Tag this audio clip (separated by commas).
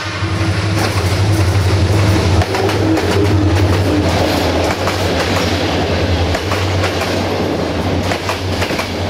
Clickety-clack, Rail transport, Train, train wagon